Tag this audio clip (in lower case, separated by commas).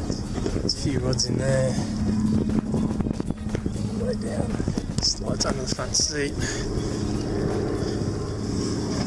speech, vehicle, music